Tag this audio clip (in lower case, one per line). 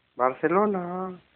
human voice